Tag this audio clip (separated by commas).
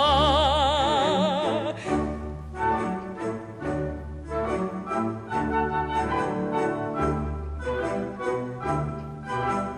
Music, Orchestra, Opera